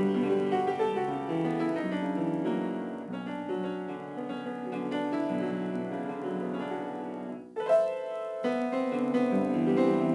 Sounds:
Musical instrument, Classical music, Keyboard (musical), Music, Piano

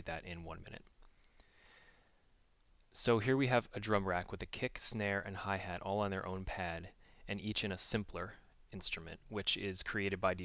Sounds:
Speech

